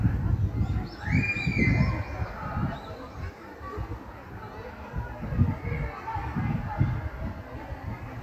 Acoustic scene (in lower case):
park